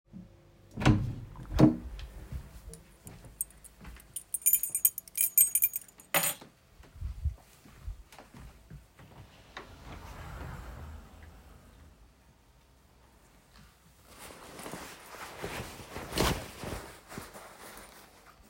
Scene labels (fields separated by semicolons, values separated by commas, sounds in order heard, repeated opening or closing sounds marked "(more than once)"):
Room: bedroom; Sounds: door, footsteps, keys, wardrobe or drawer